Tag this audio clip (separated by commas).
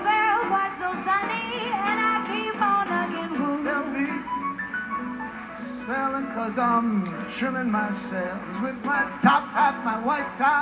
Music, Male singing, Female singing